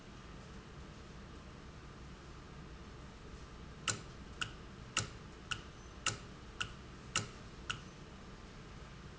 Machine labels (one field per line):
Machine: valve